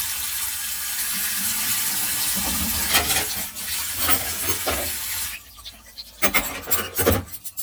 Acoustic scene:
kitchen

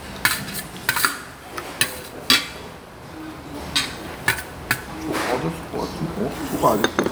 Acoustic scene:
restaurant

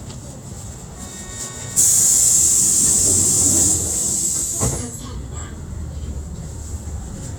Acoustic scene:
bus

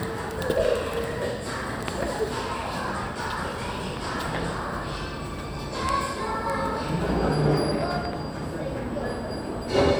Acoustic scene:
cafe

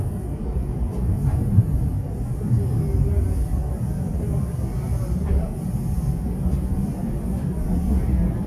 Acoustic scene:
subway train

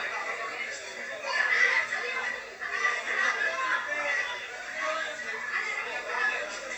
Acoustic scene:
crowded indoor space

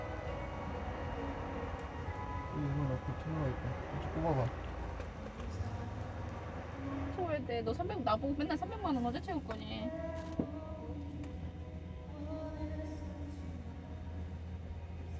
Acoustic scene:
car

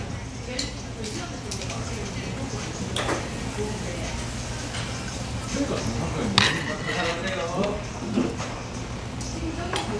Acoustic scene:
restaurant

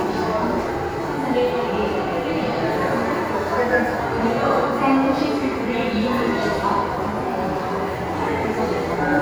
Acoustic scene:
subway station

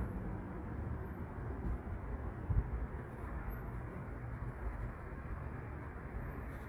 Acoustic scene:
street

